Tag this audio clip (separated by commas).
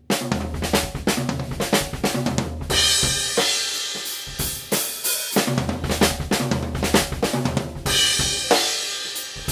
Music